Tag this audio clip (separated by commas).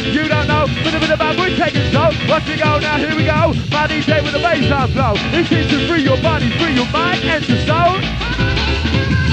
Electronic music, Music